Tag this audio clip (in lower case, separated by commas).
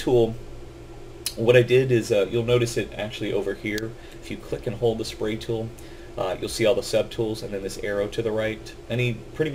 speech